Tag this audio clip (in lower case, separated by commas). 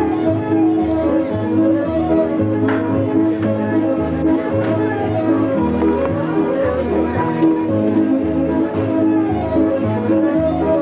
music, speech